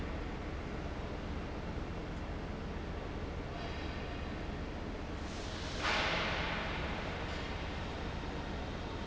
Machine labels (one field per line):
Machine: fan